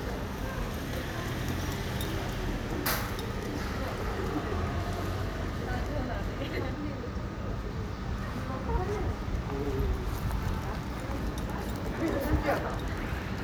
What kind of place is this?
residential area